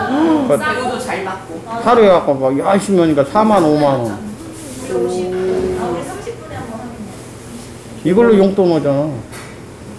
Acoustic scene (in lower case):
crowded indoor space